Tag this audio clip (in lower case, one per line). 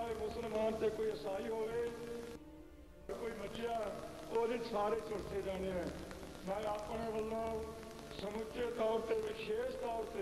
speech
monologue
male speech